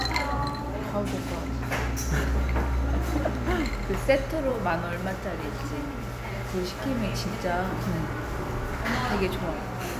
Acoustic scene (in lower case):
cafe